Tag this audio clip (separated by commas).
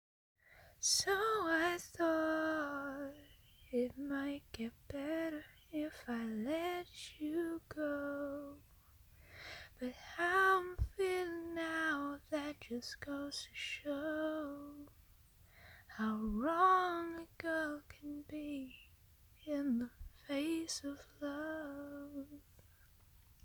Female singing, Singing, Human voice